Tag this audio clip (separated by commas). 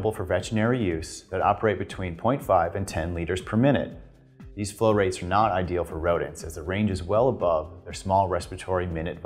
Music, Speech